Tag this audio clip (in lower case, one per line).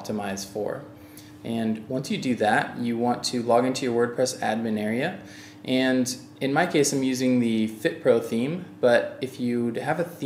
speech